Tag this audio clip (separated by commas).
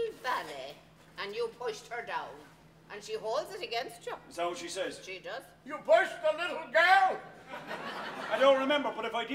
Speech